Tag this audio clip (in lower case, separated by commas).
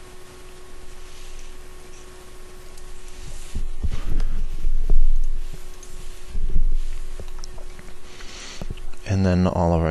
speech